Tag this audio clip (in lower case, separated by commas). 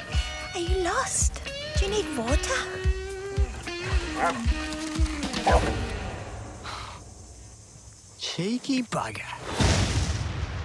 speech, bow-wow, music